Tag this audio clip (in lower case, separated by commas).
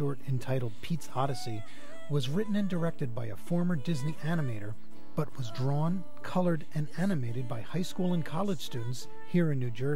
speech, background music, music, soundtrack music